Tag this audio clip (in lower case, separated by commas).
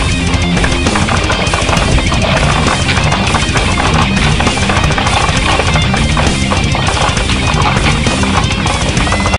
musical instrument, plucked string instrument, strum, music, electric guitar